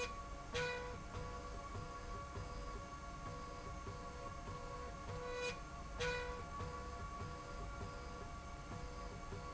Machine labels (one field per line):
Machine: slide rail